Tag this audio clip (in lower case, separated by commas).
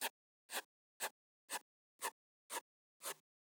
domestic sounds, writing